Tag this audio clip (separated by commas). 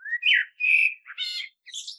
Animal, Wild animals, Bird